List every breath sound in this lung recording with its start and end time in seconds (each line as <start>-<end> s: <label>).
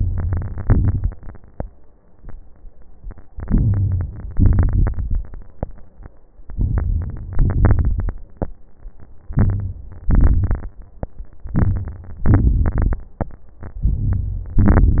0.00-0.60 s: inhalation
0.00-0.60 s: crackles
0.63-1.63 s: exhalation
3.34-4.35 s: inhalation
3.34-4.35 s: crackles
4.35-5.36 s: exhalation
4.35-5.36 s: crackles
6.35-7.35 s: crackles
6.37-7.37 s: inhalation
7.35-8.21 s: exhalation
7.35-8.21 s: crackles
9.27-10.07 s: inhalation
9.27-10.07 s: crackles
10.09-10.79 s: exhalation
10.09-10.79 s: crackles
11.54-12.23 s: inhalation
11.54-12.23 s: crackles
12.29-13.00 s: exhalation
12.29-13.00 s: crackles
13.81-14.60 s: inhalation
13.81-14.60 s: crackles
14.60-15.00 s: exhalation
14.61-15.00 s: crackles